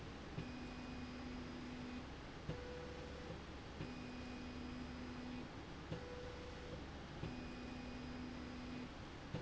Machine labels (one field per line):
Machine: slide rail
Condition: normal